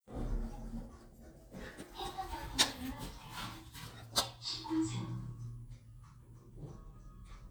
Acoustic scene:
elevator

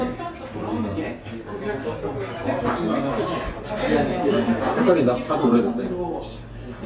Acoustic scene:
restaurant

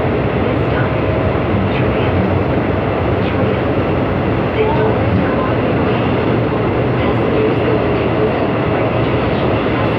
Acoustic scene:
subway train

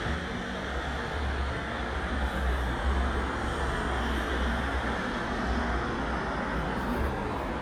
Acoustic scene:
street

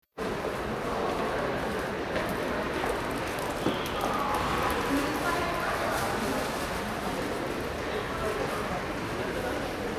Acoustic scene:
subway station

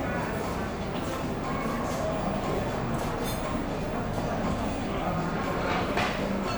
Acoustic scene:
cafe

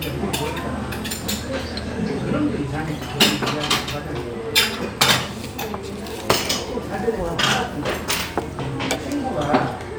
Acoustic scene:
restaurant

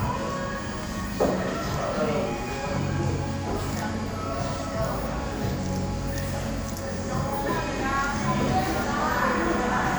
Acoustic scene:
cafe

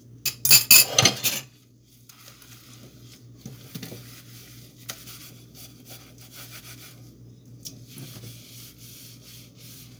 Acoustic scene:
kitchen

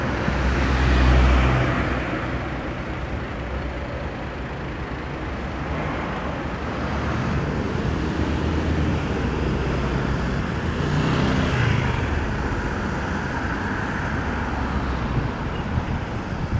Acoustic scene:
street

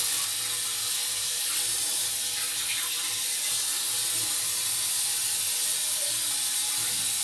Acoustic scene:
restroom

